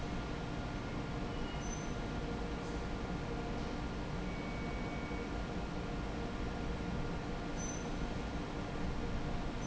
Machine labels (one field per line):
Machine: fan